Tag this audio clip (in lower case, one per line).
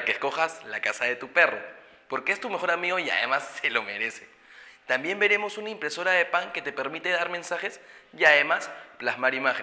speech